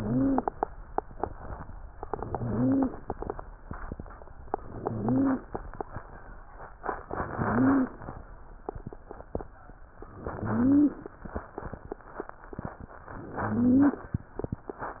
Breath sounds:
0.00-0.49 s: wheeze
2.09-3.00 s: inhalation
2.37-2.92 s: wheeze
4.61-5.49 s: inhalation
4.74-5.49 s: wheeze
7.09-7.97 s: inhalation
7.38-7.97 s: wheeze
10.17-11.08 s: inhalation
10.38-11.01 s: wheeze
13.15-14.08 s: inhalation
13.43-14.04 s: wheeze

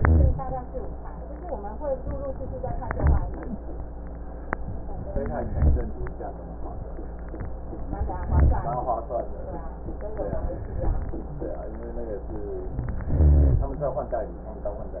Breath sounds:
0.00-0.34 s: rhonchi
0.00-0.57 s: inhalation
2.64-3.38 s: inhalation
2.86-3.32 s: rhonchi
5.18-5.92 s: inhalation
5.45-5.90 s: rhonchi
8.06-8.88 s: inhalation
8.23-8.79 s: rhonchi
10.53-11.35 s: inhalation
13.07-13.72 s: inhalation
13.07-13.72 s: rhonchi

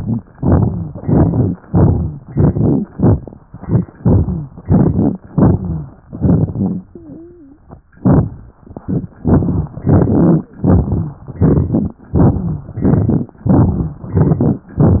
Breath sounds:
0.34-0.95 s: inhalation
0.34-0.95 s: crackles
0.99-1.56 s: exhalation
0.99-1.56 s: crackles
1.65-2.22 s: inhalation
1.65-2.22 s: crackles
2.30-2.87 s: exhalation
2.30-2.87 s: crackles
2.88-3.46 s: inhalation
2.90-3.40 s: crackles
3.45-3.95 s: exhalation
3.45-3.95 s: crackles
3.97-4.54 s: inhalation
3.97-4.54 s: crackles
4.63-5.20 s: exhalation
4.63-5.20 s: crackles
5.31-5.92 s: inhalation
5.31-5.92 s: crackles
6.07-6.87 s: exhalation
6.07-6.87 s: crackles
6.87-7.67 s: wheeze
8.01-8.54 s: inhalation
8.01-8.54 s: crackles
8.60-9.13 s: exhalation
8.60-9.13 s: crackles
9.22-9.75 s: inhalation
9.22-9.75 s: crackles
9.85-10.47 s: exhalation
9.85-10.47 s: crackles
10.61-11.23 s: inhalation
10.61-11.23 s: crackles
11.33-12.01 s: exhalation
11.33-12.01 s: crackles
12.11-12.79 s: inhalation
12.12-12.73 s: crackles
12.77-13.38 s: exhalation
12.77-13.38 s: crackles
13.43-14.04 s: inhalation
13.43-14.04 s: crackles
14.13-14.74 s: exhalation
14.13-14.74 s: crackles

